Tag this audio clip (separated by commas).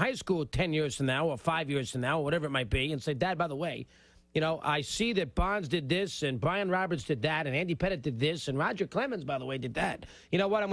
Speech